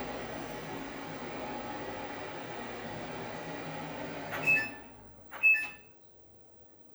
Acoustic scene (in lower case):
kitchen